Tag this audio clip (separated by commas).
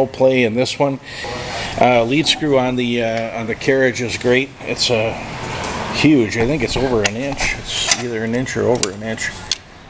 Speech